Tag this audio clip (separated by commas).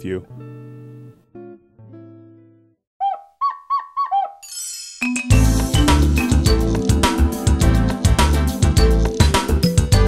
Speech, Music